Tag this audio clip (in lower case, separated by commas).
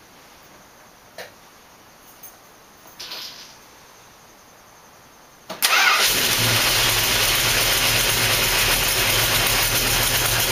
vehicle, engine, motor vehicle (road)